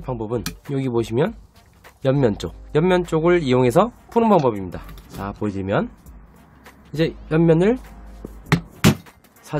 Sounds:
hammering nails

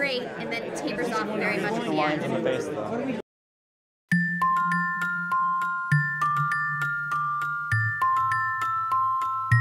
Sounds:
music, speech, glockenspiel

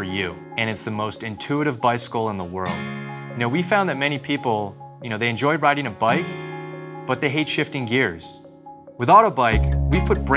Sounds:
speech, music

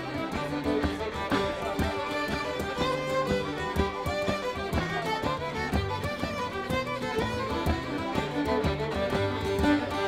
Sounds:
music

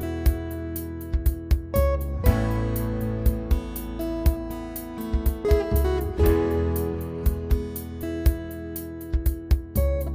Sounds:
music

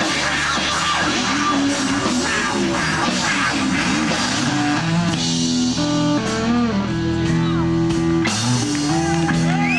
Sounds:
drum kit, percussion, music, guitar, bass drum, blues, speech, drum, musical instrument

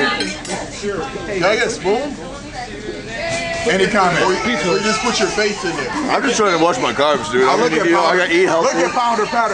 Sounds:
speech

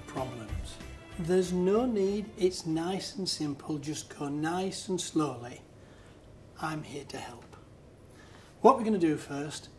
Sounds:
music, speech

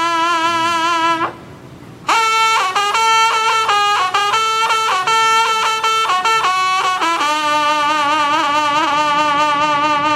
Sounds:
outside, rural or natural, music

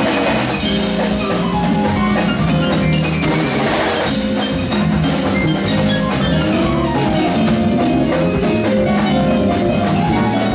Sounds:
guitar, drum, steelpan, musical instrument, drum kit, music

